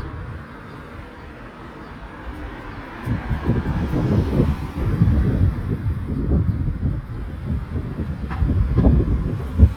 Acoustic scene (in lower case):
residential area